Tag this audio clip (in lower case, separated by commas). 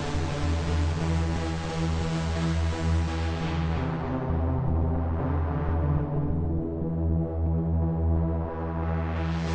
music